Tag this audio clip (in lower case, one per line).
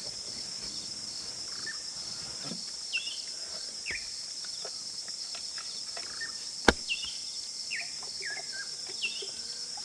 fowl